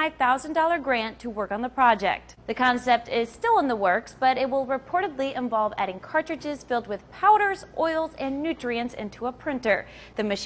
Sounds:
speech

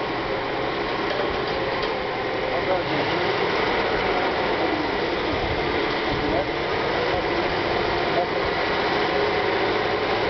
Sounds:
vehicle
truck

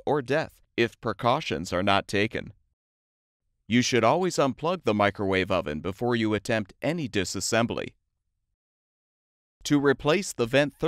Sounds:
speech

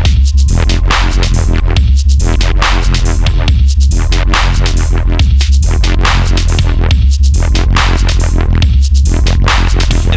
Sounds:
music
dubstep
electronic music

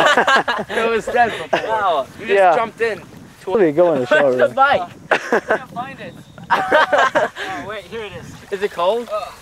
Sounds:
speech
outside, rural or natural

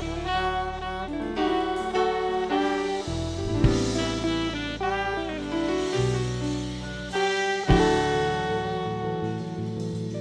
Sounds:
musical instrument
music

